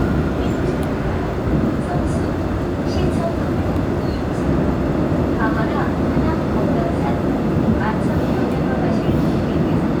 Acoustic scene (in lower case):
subway train